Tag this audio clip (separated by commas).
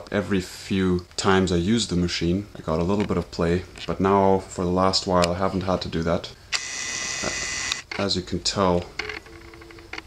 inside a small room, Speech